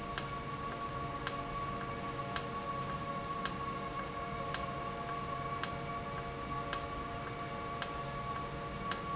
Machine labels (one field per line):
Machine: valve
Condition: normal